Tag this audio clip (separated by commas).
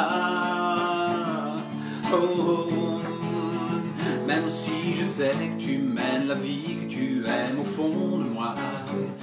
Music